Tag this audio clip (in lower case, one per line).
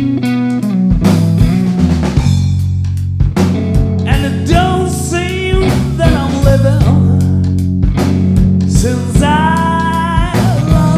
drum
guitar
drum kit
musical instrument
bass drum
percussion
music